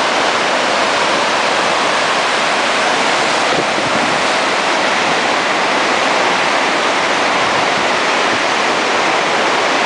Loud flow of water in a nearby stream